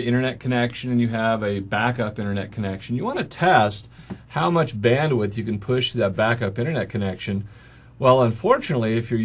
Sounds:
speech

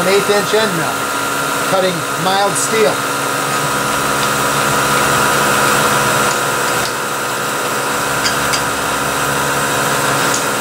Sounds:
lathe spinning

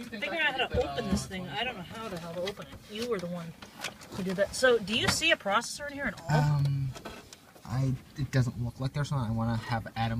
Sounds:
speech

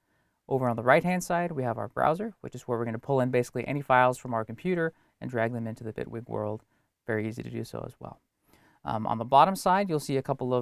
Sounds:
speech

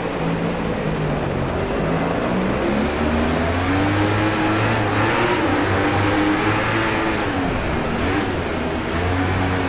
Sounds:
rain on surface

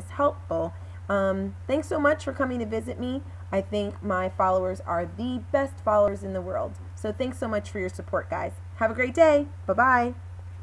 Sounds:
speech

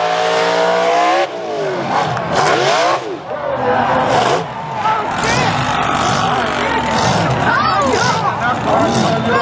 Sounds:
vehicle
truck
speech

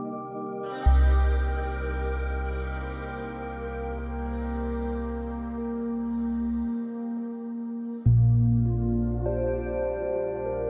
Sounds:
music

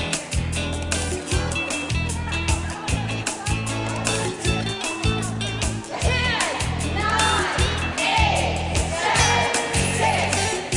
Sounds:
salsa music
music
speech

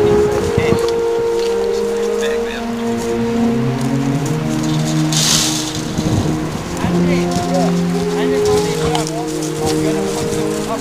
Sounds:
outside, rural or natural
speech
music

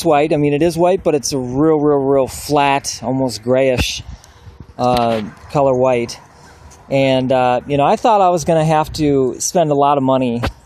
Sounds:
speech

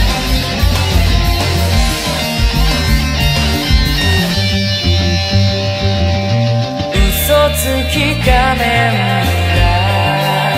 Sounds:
music

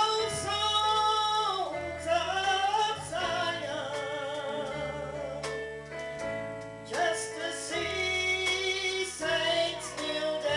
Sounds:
female singing
music

